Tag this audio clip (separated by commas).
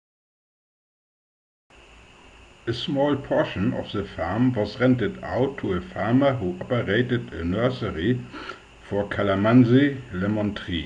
Speech